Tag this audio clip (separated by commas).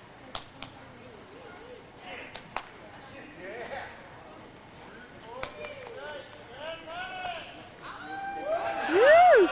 Horse, Speech, Clip-clop, Animal